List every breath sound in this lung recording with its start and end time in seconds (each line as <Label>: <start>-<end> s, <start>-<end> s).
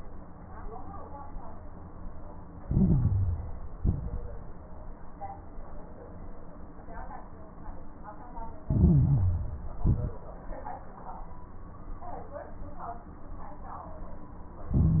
Inhalation: 2.60-3.74 s, 8.66-9.80 s, 14.71-15.00 s
Exhalation: 3.76-4.57 s, 9.82-10.17 s
Crackles: 2.60-3.74 s, 3.76-4.57 s, 8.66-9.80 s, 9.82-10.17 s, 14.71-15.00 s